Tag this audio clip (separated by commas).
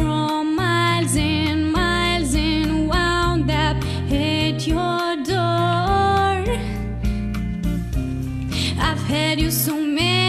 Soul music, Music